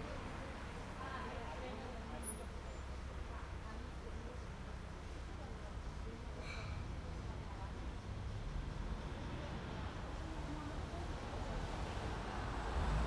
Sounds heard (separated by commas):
car wheels rolling, car engine accelerating, car, people talking